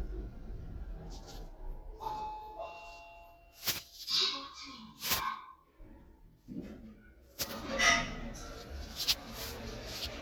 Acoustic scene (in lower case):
elevator